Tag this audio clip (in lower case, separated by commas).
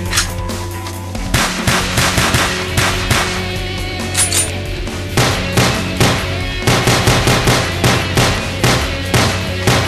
music, sound effect